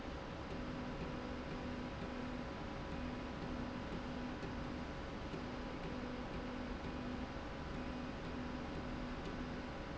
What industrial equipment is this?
slide rail